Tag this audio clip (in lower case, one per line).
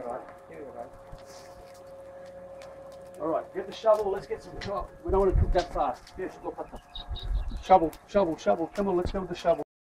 speech